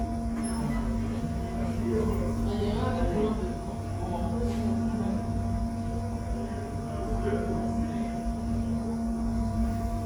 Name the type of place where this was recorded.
subway station